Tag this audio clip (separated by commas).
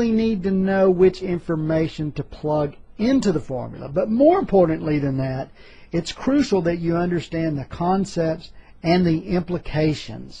Speech